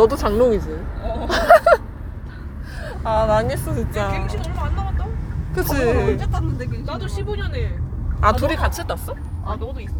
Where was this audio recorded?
in a car